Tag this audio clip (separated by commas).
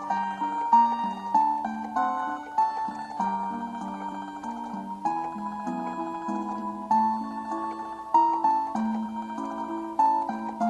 Music